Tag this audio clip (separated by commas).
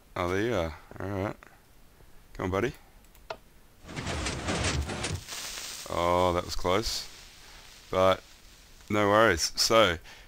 Speech